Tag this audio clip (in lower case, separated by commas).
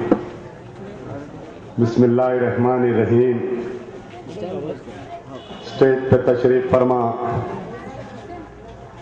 narration, speech, man speaking